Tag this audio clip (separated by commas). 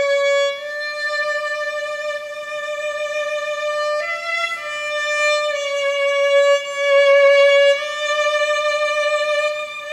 Violin, Music, Musical instrument